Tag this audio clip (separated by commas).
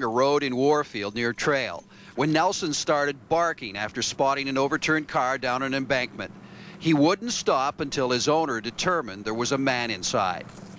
Speech